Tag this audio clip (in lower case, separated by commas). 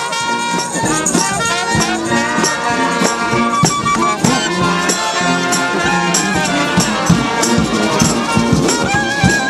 tender music, happy music, traditional music, jazz, music